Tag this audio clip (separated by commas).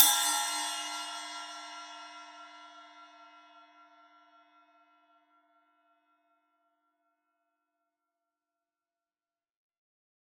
Percussion, Music, Cymbal, Crash cymbal, Musical instrument